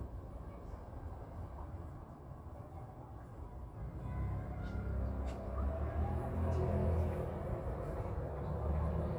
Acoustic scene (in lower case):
residential area